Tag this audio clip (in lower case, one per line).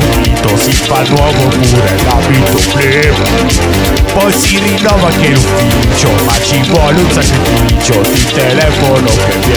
music